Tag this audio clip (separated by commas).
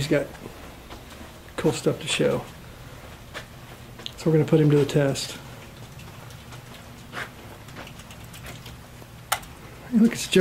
Speech, inside a large room or hall